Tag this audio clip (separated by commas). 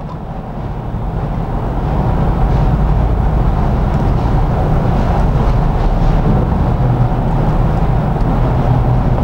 inside a small room